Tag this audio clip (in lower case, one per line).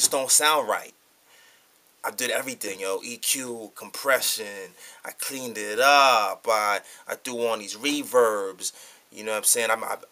speech